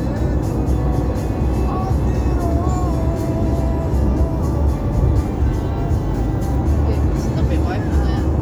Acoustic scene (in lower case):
car